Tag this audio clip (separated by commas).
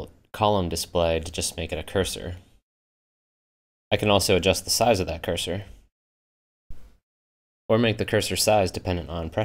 Speech